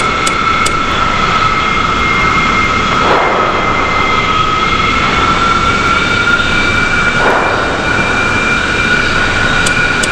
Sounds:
aircraft, vehicle

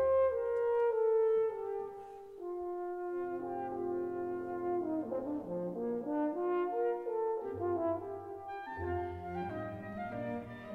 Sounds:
brass instrument, playing french horn, french horn

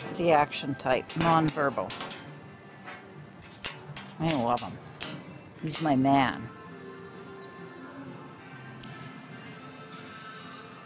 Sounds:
music, speech

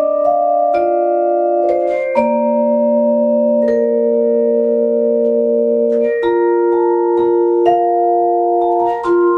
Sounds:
inside a small room, vibraphone, musical instrument, music, playing vibraphone

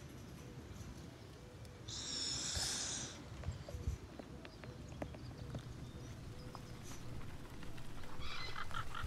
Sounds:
snake hissing

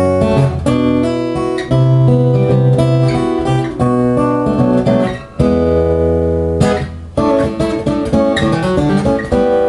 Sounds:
strum, plucked string instrument, acoustic guitar, guitar, musical instrument, music

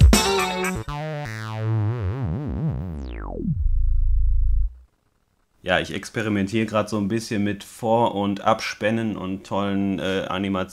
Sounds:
speech, music

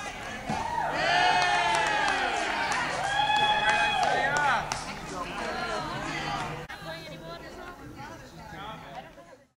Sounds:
speech, music

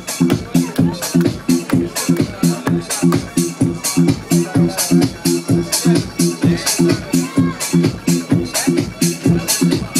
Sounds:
music, speech

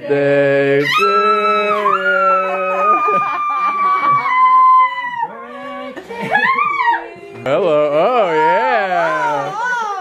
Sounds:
speech, inside a small room

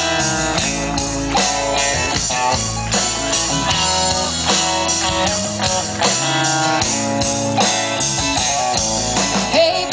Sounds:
music

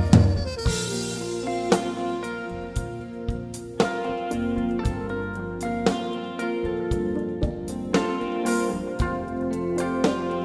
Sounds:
music

